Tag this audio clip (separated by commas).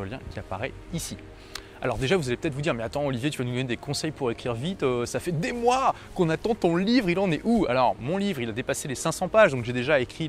Music, Speech